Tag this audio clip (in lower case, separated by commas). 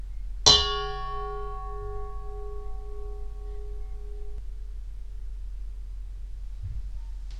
dishes, pots and pans, home sounds